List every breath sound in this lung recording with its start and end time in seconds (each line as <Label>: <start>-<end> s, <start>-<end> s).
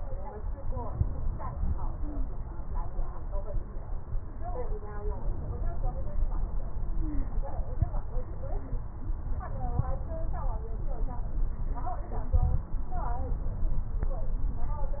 Stridor: 1.91-2.34 s, 6.84-7.46 s, 8.44-8.86 s